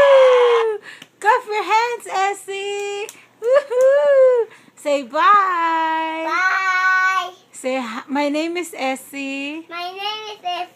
Something screeches then a woman talks with a child